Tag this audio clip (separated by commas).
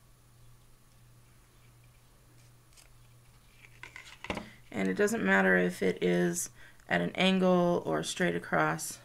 Scissors, Speech